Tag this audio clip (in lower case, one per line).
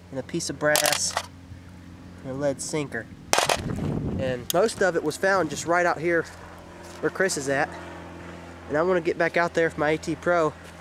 speech
outside, rural or natural